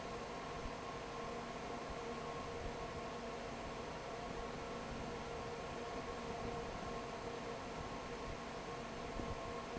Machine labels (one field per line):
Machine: fan